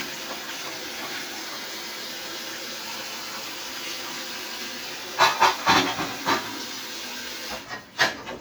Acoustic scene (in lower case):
kitchen